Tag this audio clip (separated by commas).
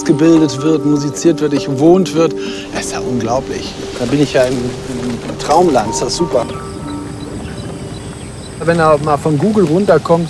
Speech, Music